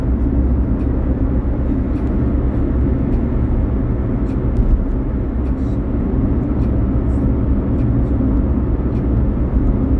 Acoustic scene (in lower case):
car